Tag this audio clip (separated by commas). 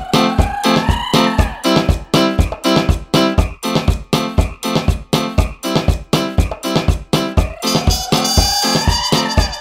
Music